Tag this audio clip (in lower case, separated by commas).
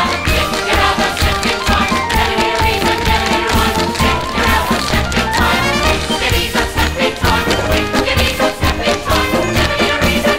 tap dancing